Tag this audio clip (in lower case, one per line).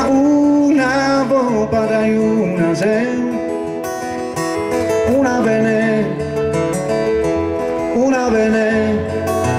music